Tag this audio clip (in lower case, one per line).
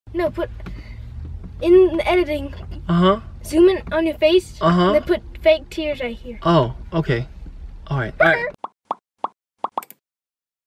speech